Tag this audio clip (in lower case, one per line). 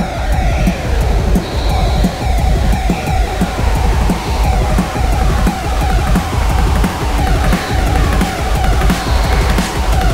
music